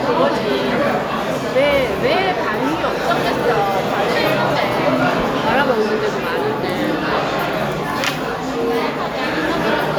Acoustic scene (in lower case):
restaurant